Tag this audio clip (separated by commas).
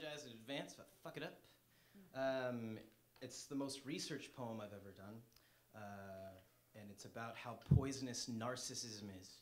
Speech